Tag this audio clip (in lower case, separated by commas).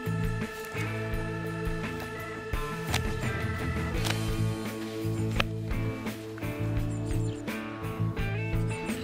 music